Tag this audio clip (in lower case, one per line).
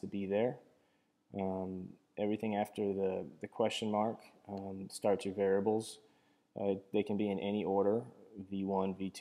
speech